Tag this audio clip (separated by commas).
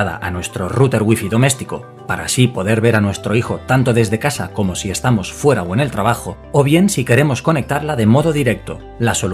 Speech, Music